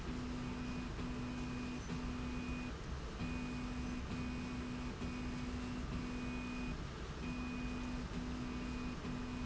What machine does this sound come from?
slide rail